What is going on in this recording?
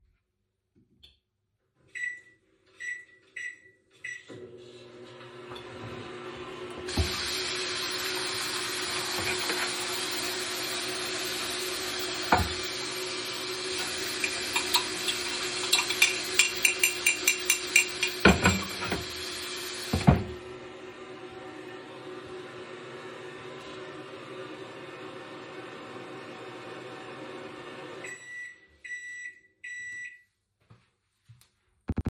The phone was placed statically on a kitchen countertop. The microwave beeped three times as it was started and began running. While the microwave was running the tap was turned on and water ran simultaneously. During the overlap a spoon was tapped a few times against the side of a coffee mug. The tap was then turned off and after a few more seconds the microwave beeped three times again signaling completion.